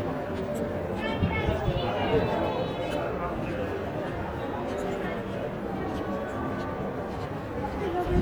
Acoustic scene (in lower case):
crowded indoor space